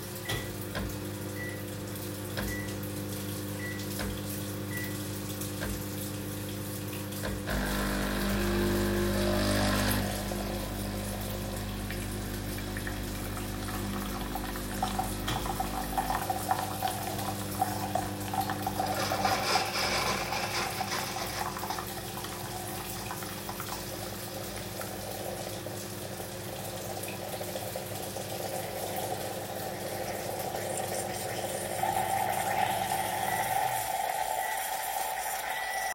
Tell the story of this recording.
Microwave and coffee machine are working and the water running . I sit with no action.